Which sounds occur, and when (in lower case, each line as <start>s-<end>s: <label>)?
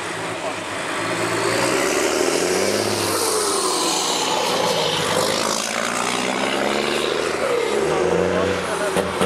0.0s-9.2s: truck
0.9s-8.7s: vroom
7.9s-9.2s: man speaking